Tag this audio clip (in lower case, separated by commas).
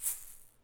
music, musical instrument, rattle (instrument), percussion